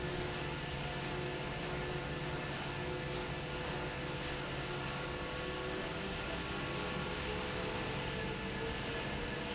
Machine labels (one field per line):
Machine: fan